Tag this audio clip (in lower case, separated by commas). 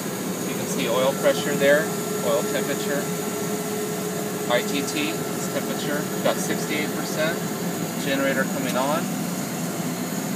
speech, aircraft